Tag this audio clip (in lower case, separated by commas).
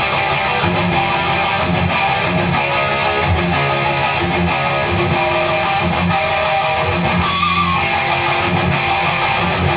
music